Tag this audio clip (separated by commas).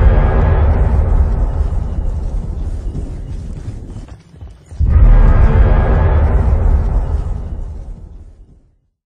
Sound effect